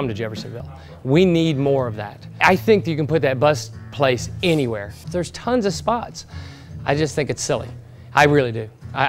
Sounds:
speech

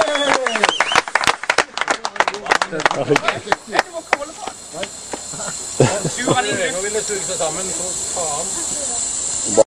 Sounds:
speech

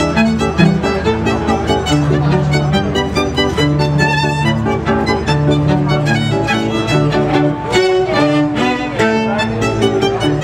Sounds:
cello
bowed string instrument
fiddle

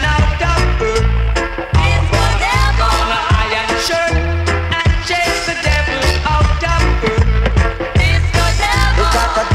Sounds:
funk
music

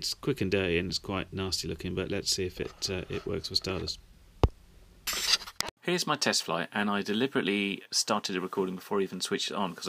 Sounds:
speech

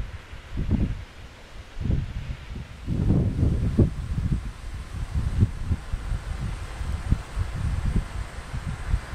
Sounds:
wind

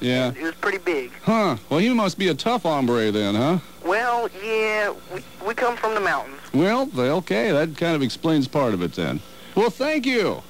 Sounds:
speech

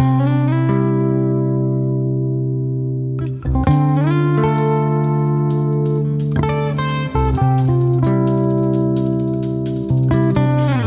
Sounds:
music

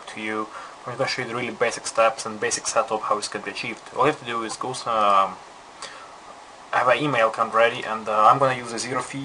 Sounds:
speech

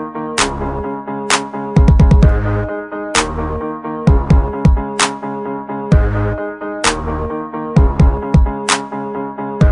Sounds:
background music
music

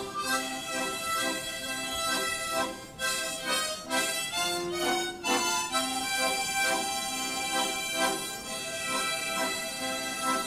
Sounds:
playing harmonica

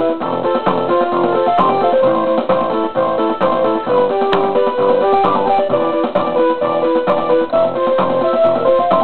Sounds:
electronic music
music
techno

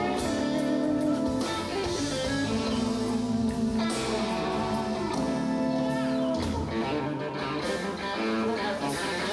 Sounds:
music

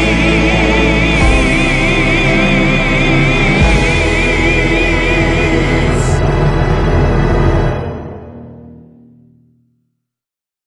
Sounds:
singing
music

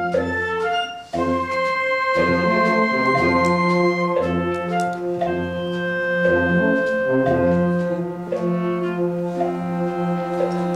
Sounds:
classical music
double bass
inside a large room or hall
music
orchestra

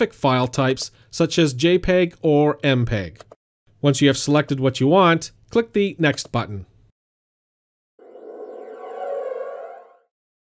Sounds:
speech

